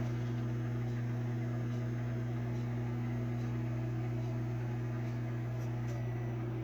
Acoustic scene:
kitchen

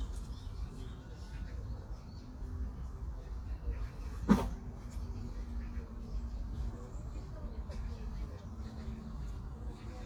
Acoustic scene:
park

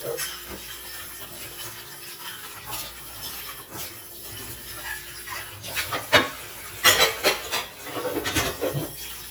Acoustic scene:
kitchen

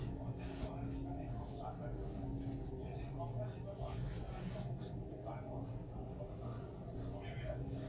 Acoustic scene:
elevator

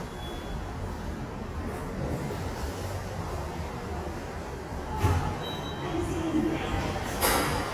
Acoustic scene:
subway station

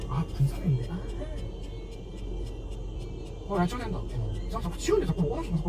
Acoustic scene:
car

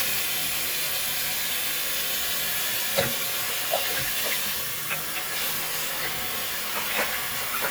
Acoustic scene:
restroom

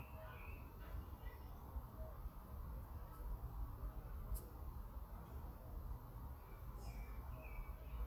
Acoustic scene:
park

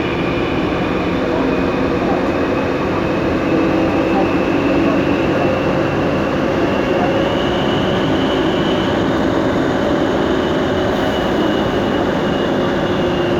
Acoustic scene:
subway train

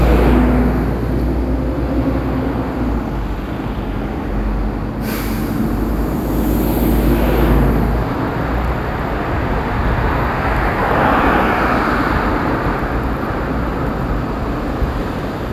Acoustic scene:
street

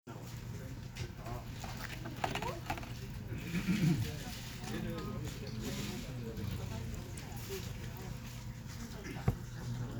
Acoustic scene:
crowded indoor space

